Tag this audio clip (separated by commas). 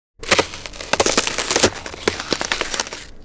Crack